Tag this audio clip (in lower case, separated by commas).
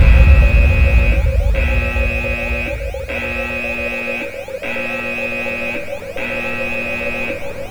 alarm